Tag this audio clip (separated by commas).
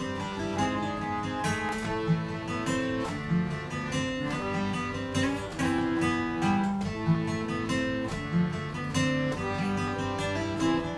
Music